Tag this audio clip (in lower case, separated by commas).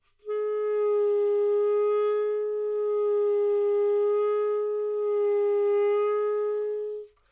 music, woodwind instrument, musical instrument